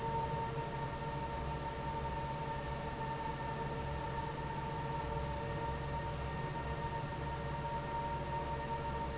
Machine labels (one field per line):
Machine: fan